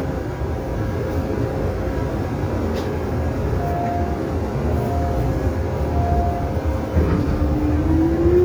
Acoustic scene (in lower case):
subway train